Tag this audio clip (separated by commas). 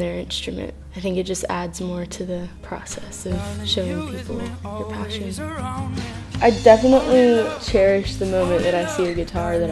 Music, Speech